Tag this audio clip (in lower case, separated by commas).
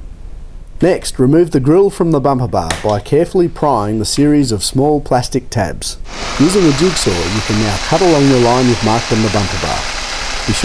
speech, inside a large room or hall